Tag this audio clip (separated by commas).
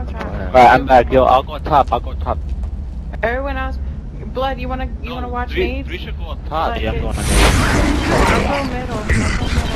Speech